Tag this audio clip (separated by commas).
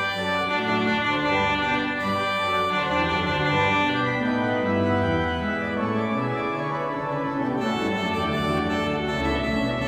Keyboard (musical), Organ, Music, Musical instrument